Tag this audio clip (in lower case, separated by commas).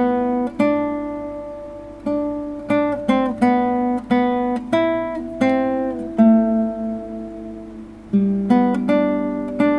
acoustic guitar, musical instrument, plucked string instrument, strum, music, guitar